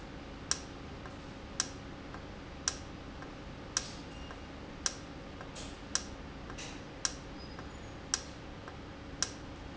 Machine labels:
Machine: valve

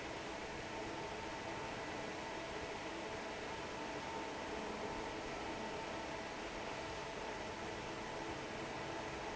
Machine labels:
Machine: fan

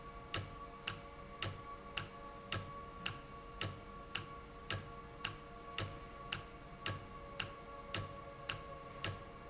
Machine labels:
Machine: valve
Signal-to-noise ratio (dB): 6 dB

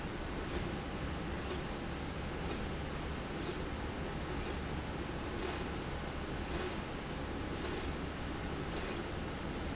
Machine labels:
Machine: slide rail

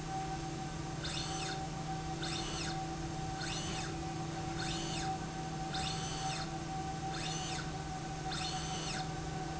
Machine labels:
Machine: slide rail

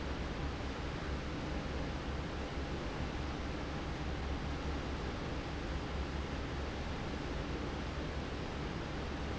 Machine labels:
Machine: fan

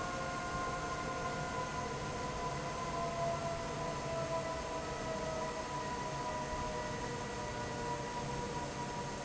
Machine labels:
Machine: fan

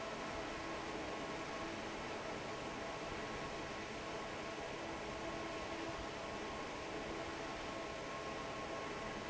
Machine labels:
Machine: fan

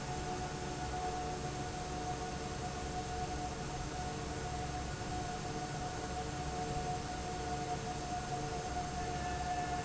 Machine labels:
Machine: fan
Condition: normal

